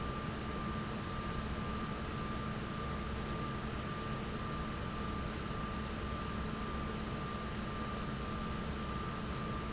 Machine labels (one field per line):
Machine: fan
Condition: normal